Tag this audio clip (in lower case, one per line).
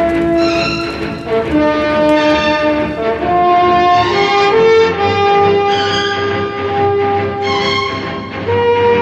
music